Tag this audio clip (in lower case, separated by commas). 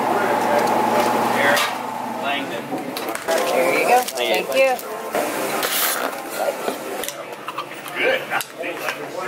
speech